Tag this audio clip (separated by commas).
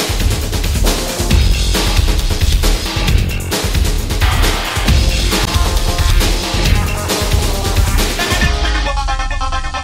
Techno, Music